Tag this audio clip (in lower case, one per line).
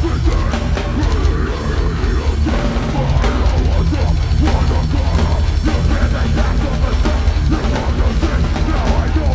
music